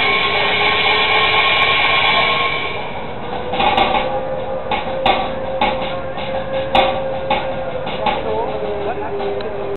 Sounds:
Music, Speech

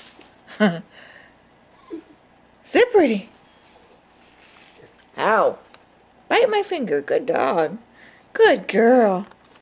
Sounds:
Speech

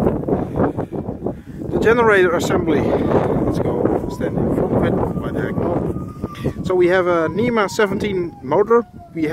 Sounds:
Speech, Wind noise (microphone)

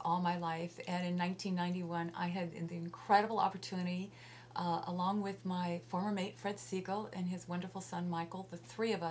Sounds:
Speech

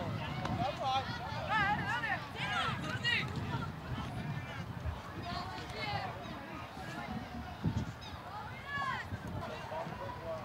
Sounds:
Speech

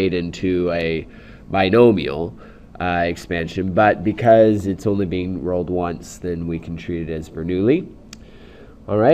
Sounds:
Speech

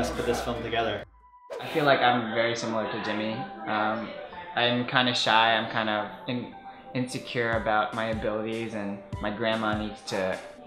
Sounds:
Speech, Music

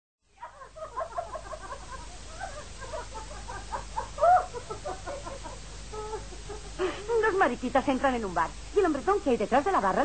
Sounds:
inside a small room, Speech

